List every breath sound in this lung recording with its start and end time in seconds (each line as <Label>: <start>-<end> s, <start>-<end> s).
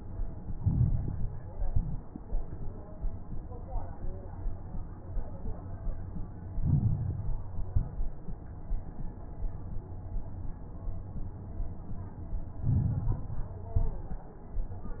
Inhalation: 0.49-1.42 s, 6.54-7.46 s, 12.58-13.51 s
Exhalation: 1.42-2.05 s, 7.52-8.15 s, 13.70-14.33 s
Crackles: 0.49-1.42 s, 1.42-2.05 s, 6.54-7.46 s, 7.52-8.15 s, 12.58-13.51 s, 13.70-14.33 s